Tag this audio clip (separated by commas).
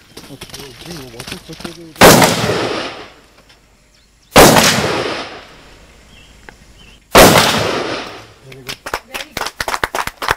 machine gun shooting